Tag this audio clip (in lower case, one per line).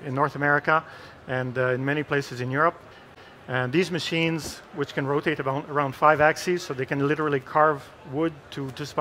speech